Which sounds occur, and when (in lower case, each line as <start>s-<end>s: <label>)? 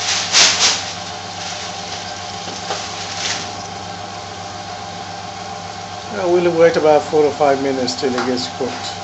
0.0s-9.0s: mechanisms
6.1s-9.0s: male speech